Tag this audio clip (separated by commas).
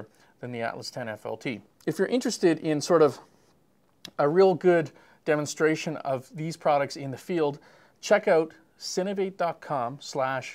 Speech